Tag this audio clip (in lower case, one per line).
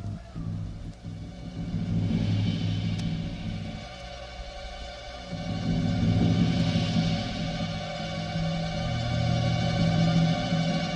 music
timpani